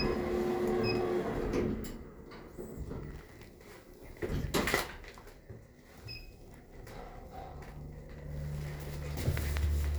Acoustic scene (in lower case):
elevator